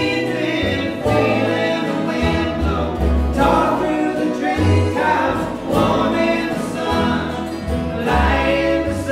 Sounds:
Music, inside a small room

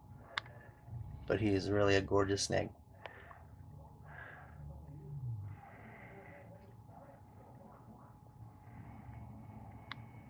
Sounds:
Speech

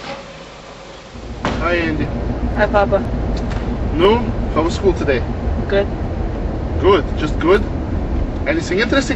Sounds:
Car, Speech, Vehicle

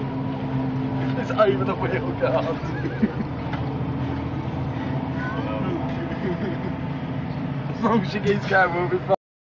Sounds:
Speech

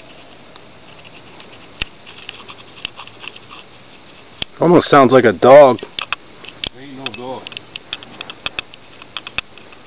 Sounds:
Speech

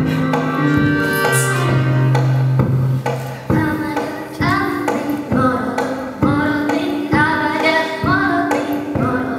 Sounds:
Female singing, Music

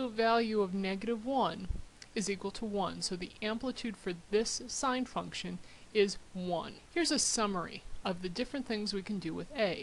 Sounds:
monologue

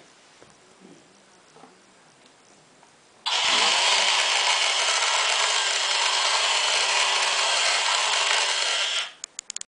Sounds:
Engine, Idling

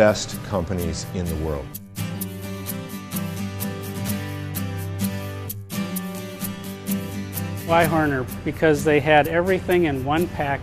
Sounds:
Speech, Music

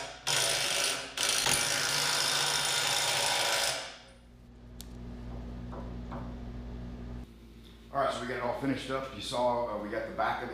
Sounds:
inside a large room or hall, Speech

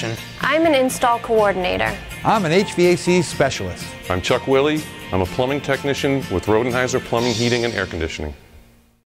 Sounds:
Music, Speech

